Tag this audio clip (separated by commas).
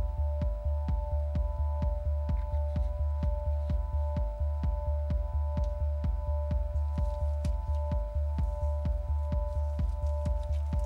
Music